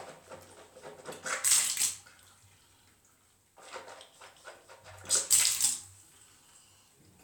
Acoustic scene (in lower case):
restroom